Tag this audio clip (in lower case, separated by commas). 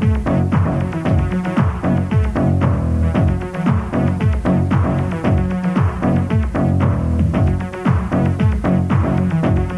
music